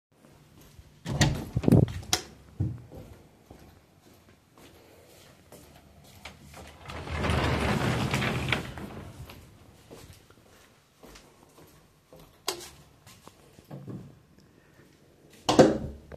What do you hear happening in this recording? I opened the door to my bedroom, turned on the light and then went to the wardrobe and opened it (sliding door). I then went back, turned off the light and closed the door.